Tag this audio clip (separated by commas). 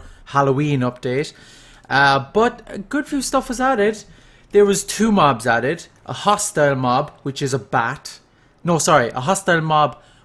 Speech